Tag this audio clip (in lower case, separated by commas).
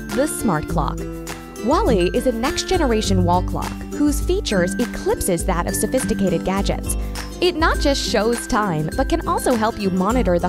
speech, music